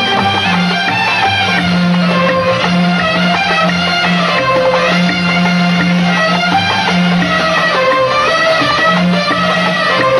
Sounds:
music

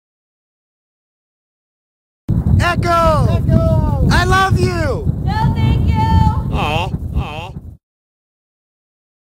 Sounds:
speech, echo

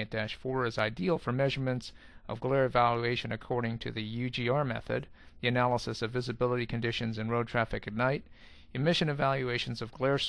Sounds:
speech

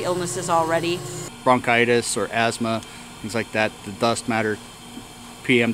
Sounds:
speech

